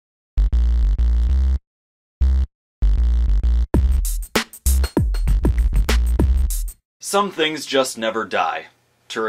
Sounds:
music, drum machine, speech

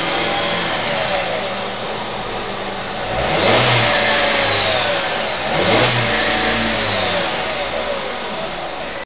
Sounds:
engine, vehicle, revving, car

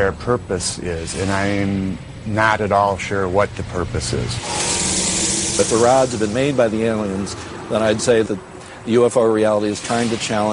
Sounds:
speech, outside, urban or man-made

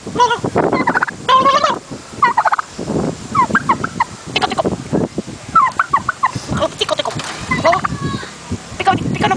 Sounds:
gobble, turkey, turkey gobbling, fowl

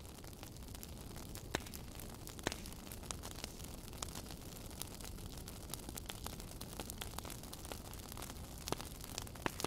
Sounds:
fire crackling

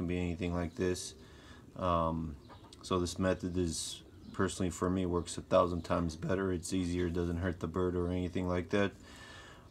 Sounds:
speech

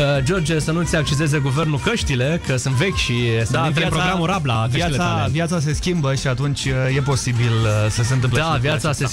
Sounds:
music, speech

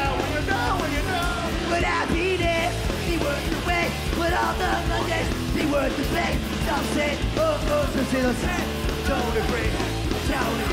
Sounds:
music, house music

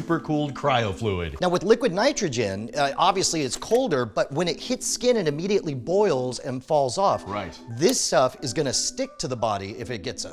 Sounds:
music, speech

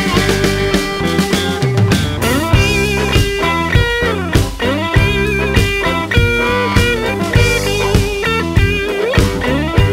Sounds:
music, blues, psychedelic rock

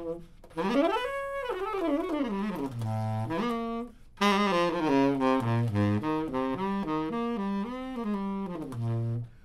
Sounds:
saxophone, brass instrument

